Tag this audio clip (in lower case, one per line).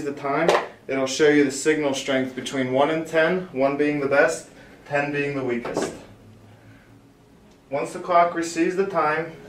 speech